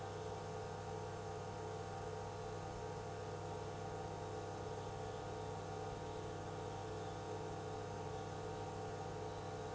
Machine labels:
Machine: pump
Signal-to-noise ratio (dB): 6 dB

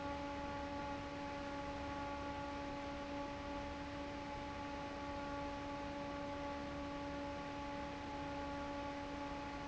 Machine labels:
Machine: fan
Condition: normal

